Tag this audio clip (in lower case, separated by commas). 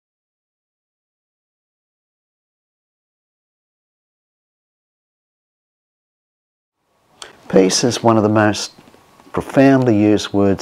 speech